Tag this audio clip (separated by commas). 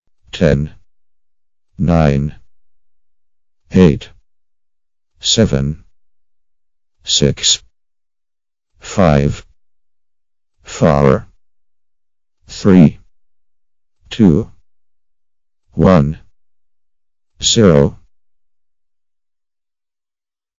Human voice, Speech synthesizer, Speech